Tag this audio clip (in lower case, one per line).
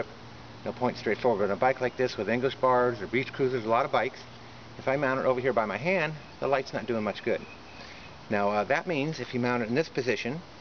speech
outside, urban or man-made